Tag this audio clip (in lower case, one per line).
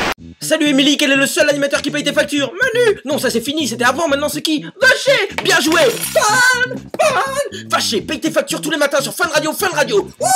speech
music